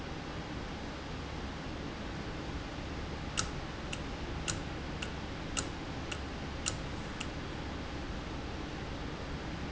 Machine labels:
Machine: valve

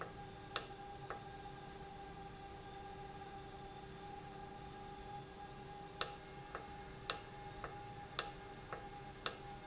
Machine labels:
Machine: valve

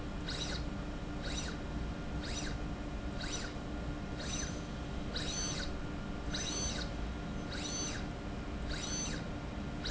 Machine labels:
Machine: slide rail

